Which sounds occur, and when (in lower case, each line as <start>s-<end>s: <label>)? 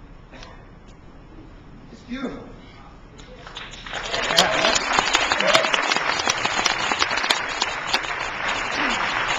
0.0s-9.3s: mechanisms
0.4s-0.5s: tick
0.9s-0.9s: tick
2.0s-2.4s: man speaking
2.7s-3.3s: man speaking
3.2s-9.3s: applause
4.0s-4.8s: man speaking
5.2s-5.8s: man speaking
8.7s-9.0s: throat clearing